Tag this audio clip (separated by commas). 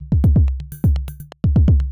Musical instrument, Drum kit, Percussion, Music